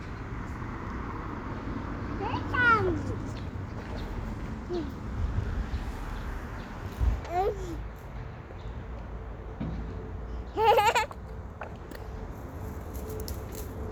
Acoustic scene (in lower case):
street